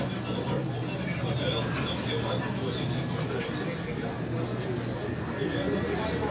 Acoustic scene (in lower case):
crowded indoor space